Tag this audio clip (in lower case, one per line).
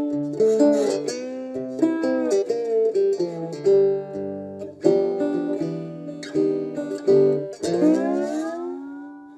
musical instrument
guitar
music
plucked string instrument
acoustic guitar
bass guitar